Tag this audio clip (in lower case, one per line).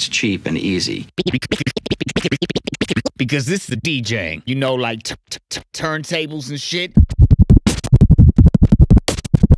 scratching (performance technique)
music
speech